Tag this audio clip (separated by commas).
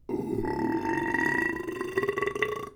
eructation